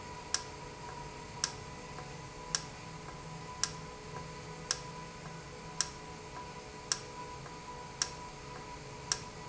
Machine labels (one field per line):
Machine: valve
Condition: normal